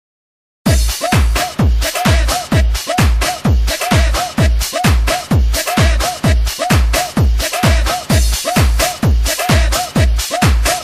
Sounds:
disco, music, house music

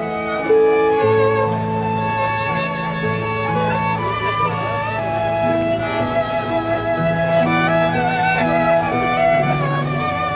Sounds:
wedding music, music

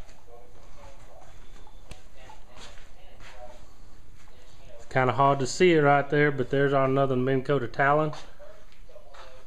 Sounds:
speech

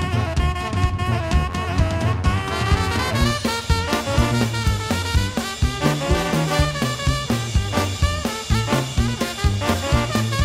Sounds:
brass instrument, music, jazz

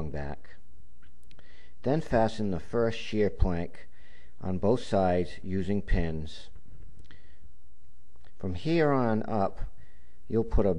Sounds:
speech

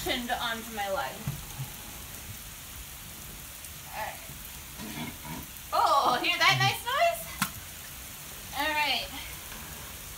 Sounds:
rain on surface, speech

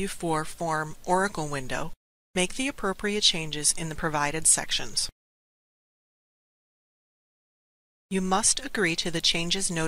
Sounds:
speech synthesizer, speech

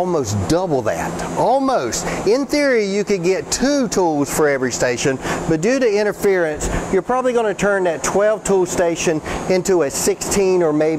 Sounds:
tools, speech

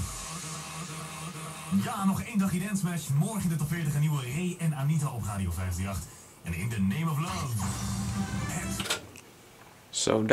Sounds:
music, speech, radio

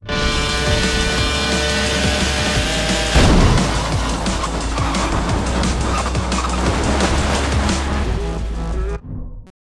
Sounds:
music, vehicle, car, engine

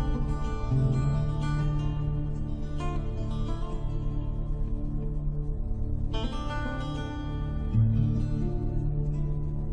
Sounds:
music

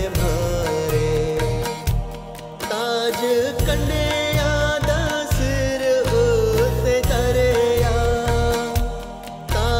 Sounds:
music of bollywood, tabla, christian music, music

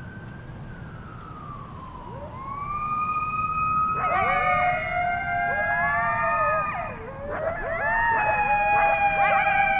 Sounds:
coyote howling

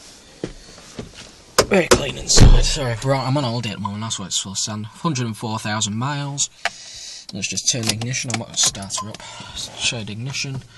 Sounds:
speech

